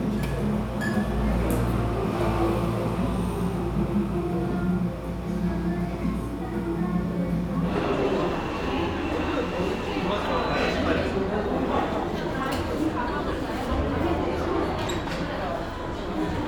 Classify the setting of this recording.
cafe